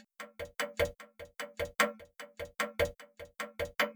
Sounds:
Mechanisms, Clock

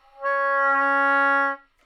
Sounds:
Music, Musical instrument, woodwind instrument

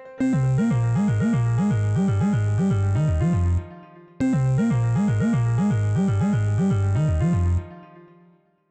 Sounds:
Musical instrument, Keyboard (musical), Piano, Music

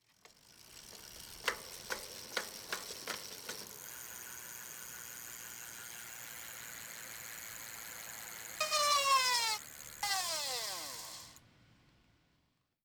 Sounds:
Vehicle, Bicycle

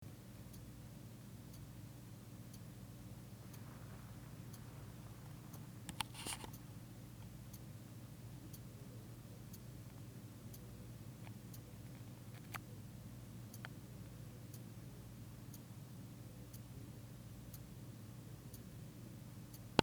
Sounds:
Tick-tock, Clock, Mechanisms

